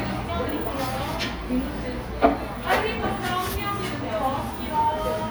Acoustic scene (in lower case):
cafe